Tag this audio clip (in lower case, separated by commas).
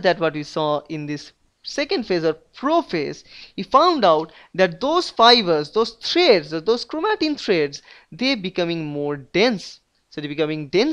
narration, speech